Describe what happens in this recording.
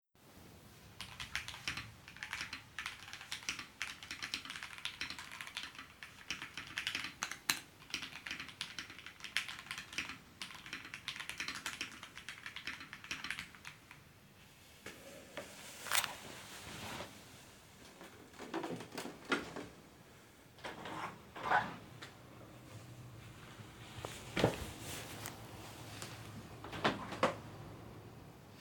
I type on my keyboard. I get up from my chair, which causes my keys to rattle and open the two windows, one after another.